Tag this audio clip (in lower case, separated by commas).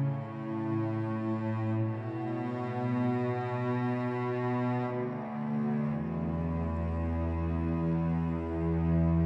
music, independent music